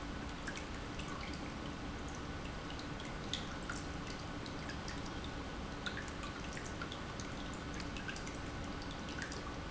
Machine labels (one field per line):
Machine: pump